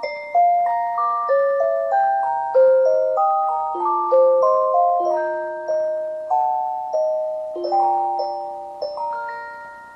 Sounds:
music

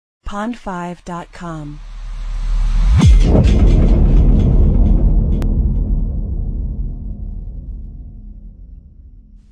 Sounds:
sound effect

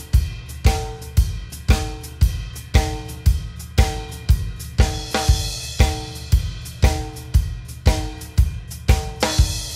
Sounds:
playing bass drum

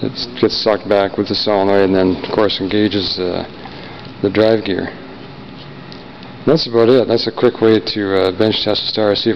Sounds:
speech, engine

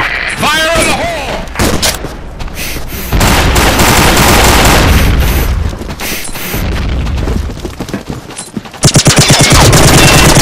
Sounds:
speech

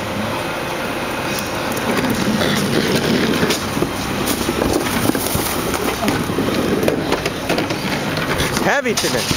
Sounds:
speech

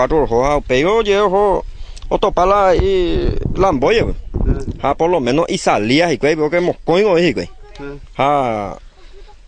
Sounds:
outside, rural or natural, speech

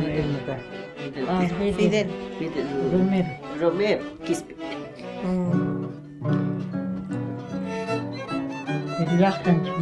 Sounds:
flamenco, string section, fiddle

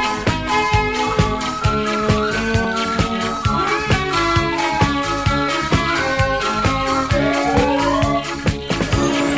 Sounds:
music

